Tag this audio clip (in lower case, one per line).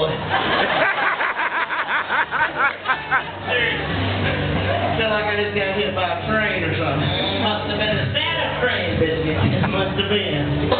speech
music